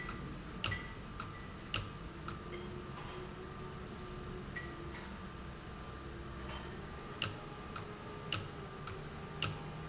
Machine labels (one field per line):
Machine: valve